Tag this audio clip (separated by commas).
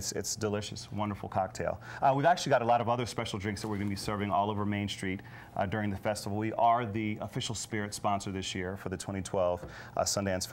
Speech